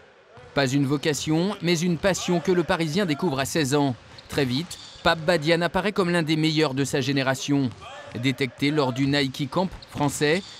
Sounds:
speech

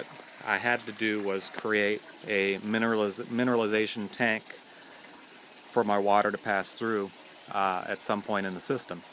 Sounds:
water

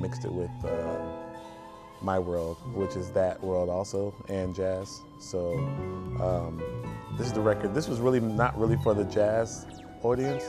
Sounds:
music
speech

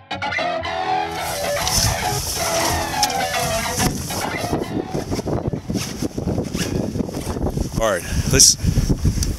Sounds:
music
speech

